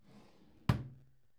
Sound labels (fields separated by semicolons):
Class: drawer; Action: closing; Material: wooden